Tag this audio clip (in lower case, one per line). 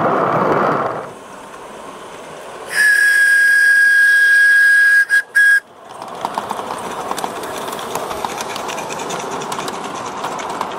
rail transport
train wagon
train